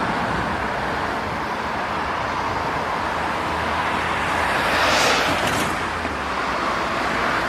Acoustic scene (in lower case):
street